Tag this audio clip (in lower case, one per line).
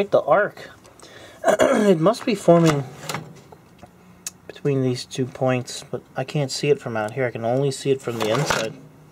speech